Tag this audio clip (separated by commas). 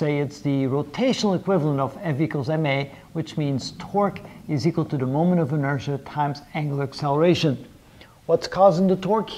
Speech